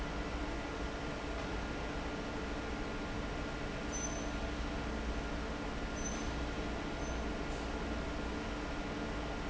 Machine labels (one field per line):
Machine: fan